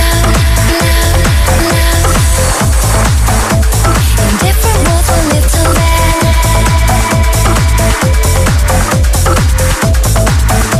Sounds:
Music

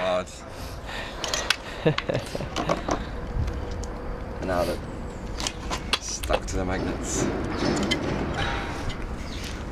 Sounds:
Speech

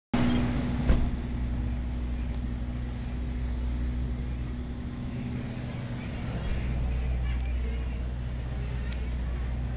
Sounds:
Speech, inside a public space

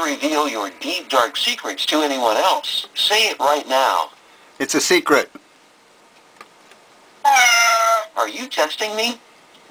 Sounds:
Speech

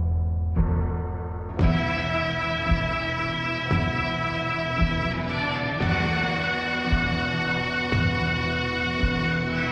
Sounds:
Music

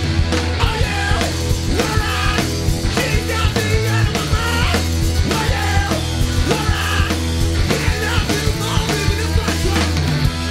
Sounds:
Music, Funk

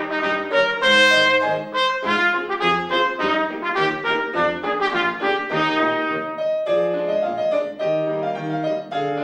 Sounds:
playing trumpet, Trumpet, Brass instrument

